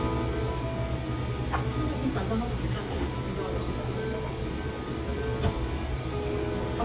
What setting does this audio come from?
cafe